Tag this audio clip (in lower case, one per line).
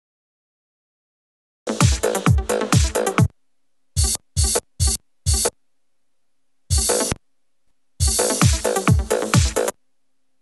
music
electronic music
synthesizer